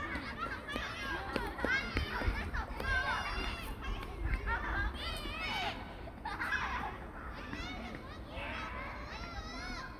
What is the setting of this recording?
park